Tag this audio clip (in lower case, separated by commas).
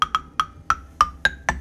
xylophone, musical instrument, music, percussion, mallet percussion